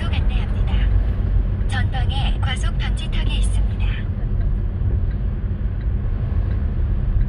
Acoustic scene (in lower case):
car